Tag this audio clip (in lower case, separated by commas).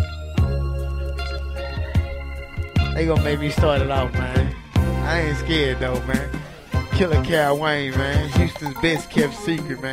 speech, music